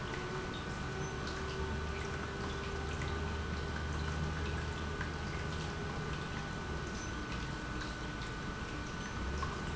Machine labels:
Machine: pump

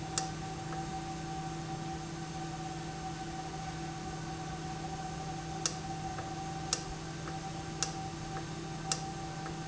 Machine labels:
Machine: valve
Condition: normal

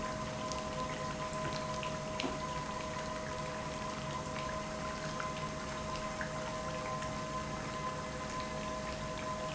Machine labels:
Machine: pump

